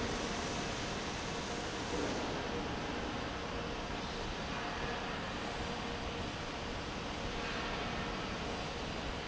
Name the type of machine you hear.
fan